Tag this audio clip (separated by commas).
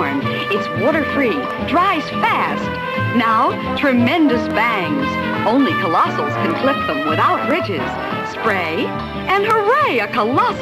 Speech, Music